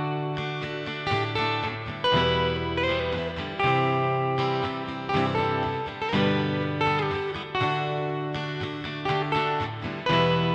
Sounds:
strum, electric guitar, plucked string instrument, musical instrument, music, guitar, acoustic guitar

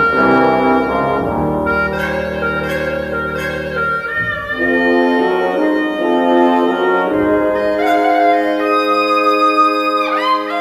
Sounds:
bowed string instrument, music

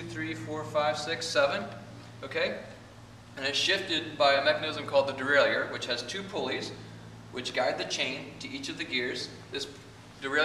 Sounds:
speech

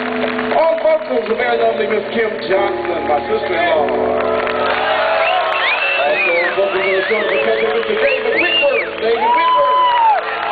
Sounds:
speech, music

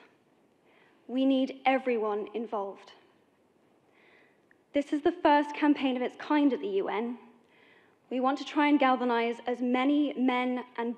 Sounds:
woman speaking, monologue, speech

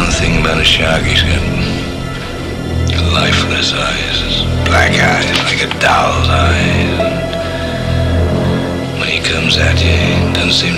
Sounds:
music, electronic music, speech

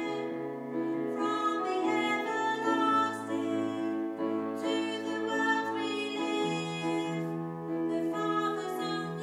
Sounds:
gospel music, music, tender music

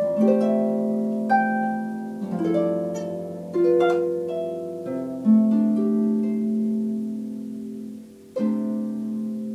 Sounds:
playing harp

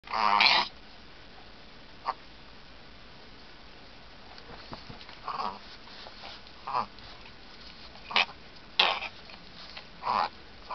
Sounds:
dog, animal

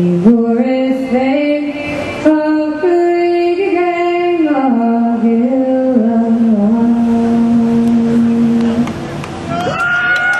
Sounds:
inside a large room or hall, singing

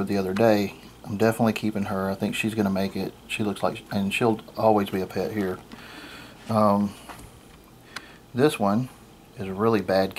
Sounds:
speech, inside a small room

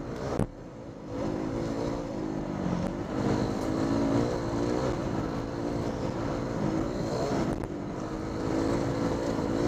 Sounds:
accelerating, engine, medium engine (mid frequency), vehicle

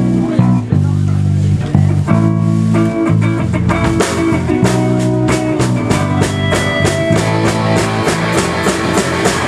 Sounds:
music, speech

